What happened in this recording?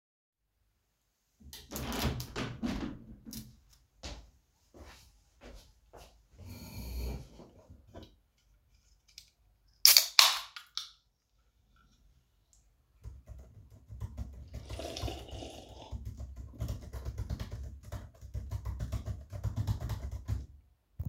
I opened my window and walked to my desk, then i pulled the chair back and sat down, then i opend an energy drink, then i stated typing on my keyboard and took a sip of my drink during it